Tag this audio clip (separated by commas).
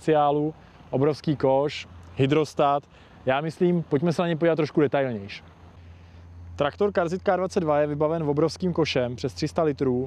Vehicle, Speech